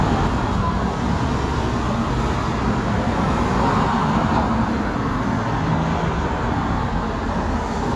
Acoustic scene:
street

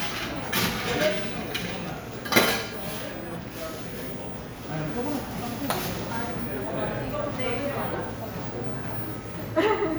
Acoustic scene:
cafe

